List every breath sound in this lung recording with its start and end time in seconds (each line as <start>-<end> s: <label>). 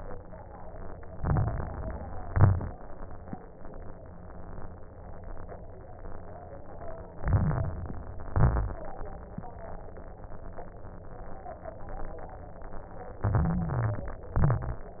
1.06-2.18 s: inhalation
1.06-2.18 s: crackles
2.17-2.88 s: exhalation
2.18-2.89 s: crackles
7.11-8.23 s: inhalation
7.11-8.23 s: crackles
8.30-9.01 s: exhalation
13.17-14.29 s: inhalation
13.17-14.29 s: stridor
14.29-15.00 s: exhalation
14.29-15.00 s: crackles